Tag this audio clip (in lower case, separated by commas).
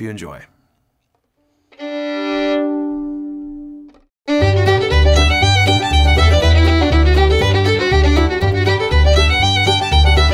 musical instrument, music, speech, fiddle, bluegrass